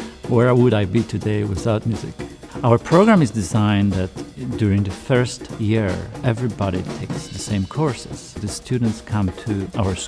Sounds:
Music, Speech

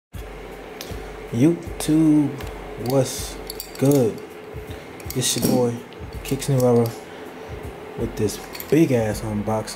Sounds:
Speech, inside a small room, Music

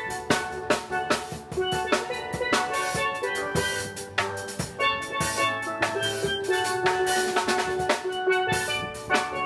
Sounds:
Drum, Musical instrument, Snare drum, Percussion, Drum kit, Music, Steelpan

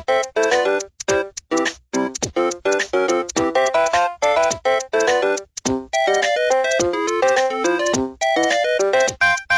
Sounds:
Music

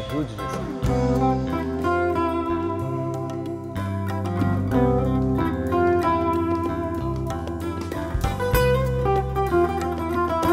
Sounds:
Speech, Music, Tender music

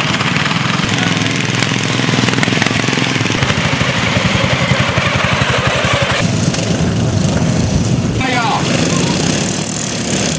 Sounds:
Lawn mower, lawn mowing, Speech, Vehicle

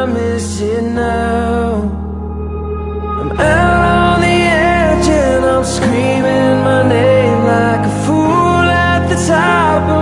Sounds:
Music

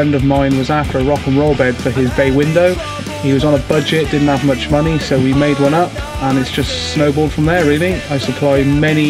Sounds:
Music, Rock and roll, Speech

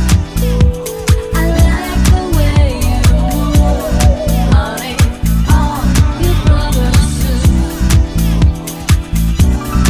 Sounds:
Disco

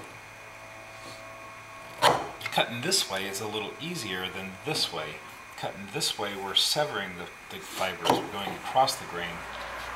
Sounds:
Speech, Wood

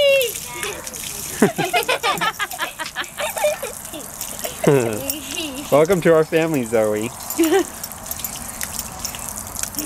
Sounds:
Gurgling, Speech

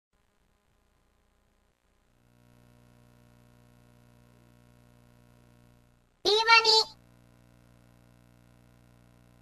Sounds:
Speech

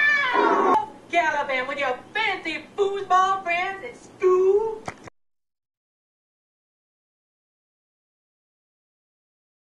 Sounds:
Speech, Music

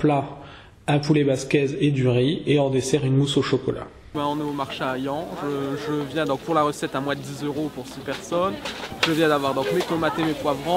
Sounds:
Speech

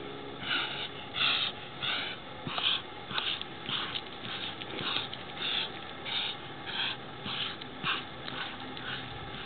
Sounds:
Animal

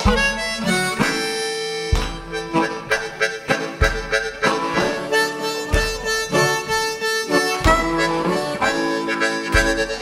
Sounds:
playing harmonica

